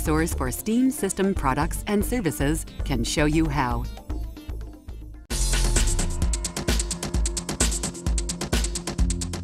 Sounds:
Speech, Music

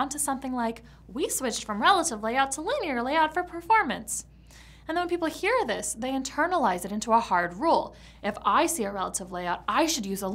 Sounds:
Speech

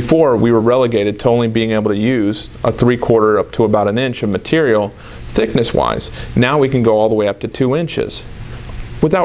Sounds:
Speech

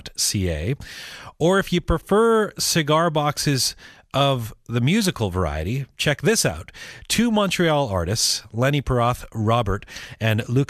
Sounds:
Speech

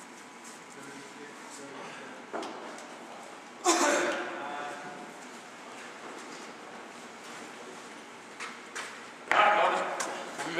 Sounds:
Engine, Speech

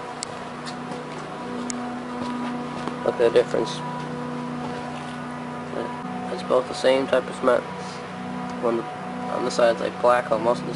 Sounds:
Speech

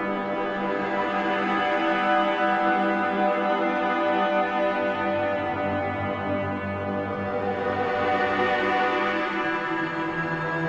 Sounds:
Music, New-age music

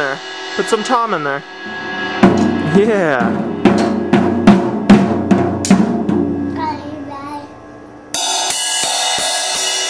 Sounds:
Musical instrument, Music, Speech

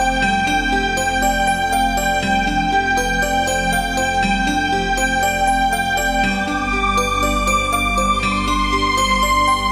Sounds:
Background music

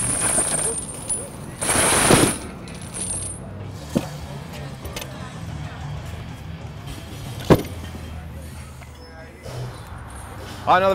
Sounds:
Music, Speech, outside, urban or man-made

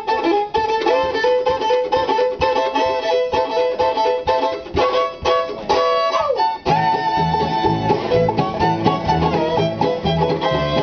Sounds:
Violin, Musical instrument, Pizzicato, Music

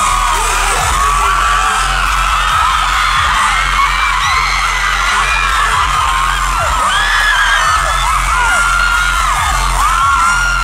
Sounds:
Music, Dance music

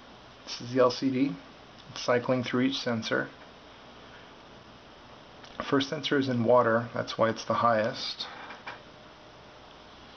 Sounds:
Speech

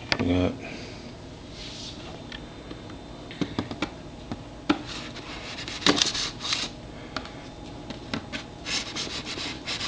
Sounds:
Speech

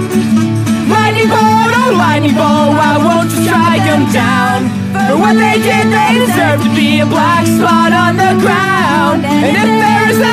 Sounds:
Music

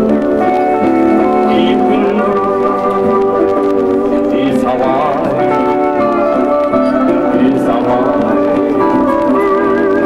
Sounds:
slide guitar, Music, Guitar

